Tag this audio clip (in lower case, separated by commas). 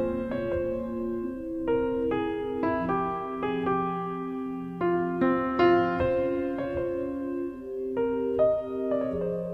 music